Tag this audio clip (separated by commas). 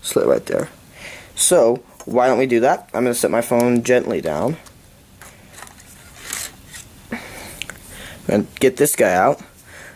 Speech